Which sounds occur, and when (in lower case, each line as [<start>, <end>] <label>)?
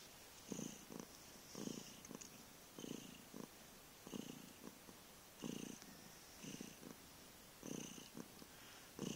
[0.00, 9.15] background noise
[0.42, 1.08] purr
[1.50, 2.35] purr
[2.73, 3.51] purr
[4.00, 4.77] purr
[5.36, 5.83] purr
[6.36, 7.06] purr
[7.60, 8.23] purr
[8.39, 8.94] breathing